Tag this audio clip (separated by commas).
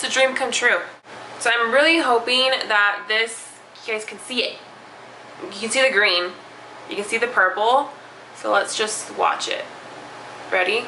Speech, inside a small room